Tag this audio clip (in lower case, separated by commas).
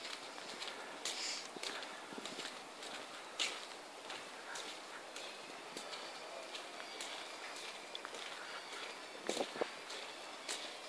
footsteps